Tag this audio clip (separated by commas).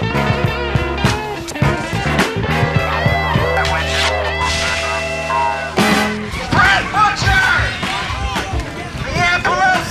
Exciting music, Music, Speech